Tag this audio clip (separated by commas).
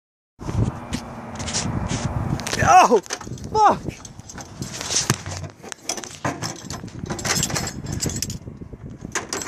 outside, rural or natural, Speech